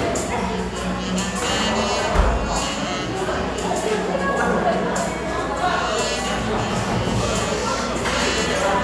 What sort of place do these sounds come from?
cafe